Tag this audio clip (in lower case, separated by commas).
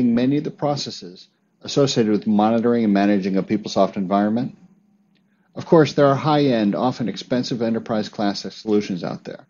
speech